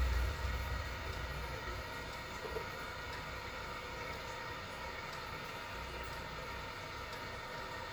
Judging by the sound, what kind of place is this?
restroom